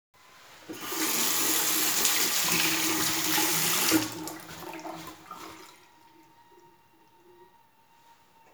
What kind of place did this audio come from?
restroom